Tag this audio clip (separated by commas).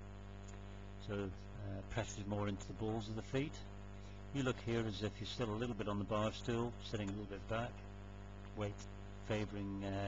Speech